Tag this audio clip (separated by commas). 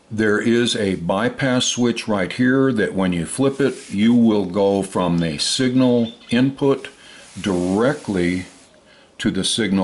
Speech